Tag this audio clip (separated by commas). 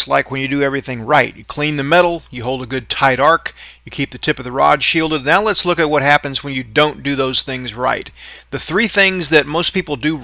arc welding